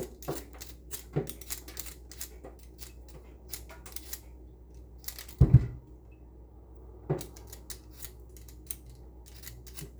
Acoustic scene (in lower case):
kitchen